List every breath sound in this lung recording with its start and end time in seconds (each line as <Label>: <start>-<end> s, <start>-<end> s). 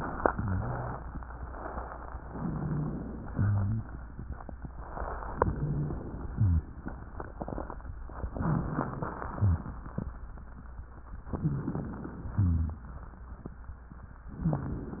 Inhalation: 2.28-3.28 s, 5.24-6.28 s, 8.37-9.32 s, 11.33-12.33 s, 14.33-15.00 s
Exhalation: 0.23-1.04 s, 3.30-3.98 s, 9.32-9.85 s
Rhonchi: 0.23-1.03 s, 2.28-3.08 s, 3.30-3.98 s, 5.50-5.98 s, 6.30-6.68 s, 8.37-9.13 s, 9.32-9.70 s, 11.33-11.74 s, 12.33-12.85 s, 14.33-14.75 s